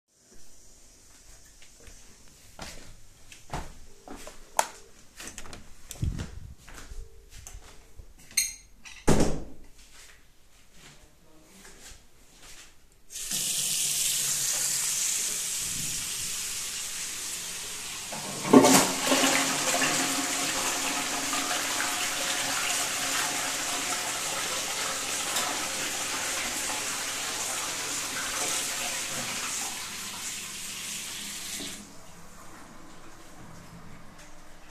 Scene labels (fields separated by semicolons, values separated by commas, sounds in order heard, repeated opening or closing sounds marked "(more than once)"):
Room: bathroom; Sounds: light switch, door, footsteps, running water, toilet flushing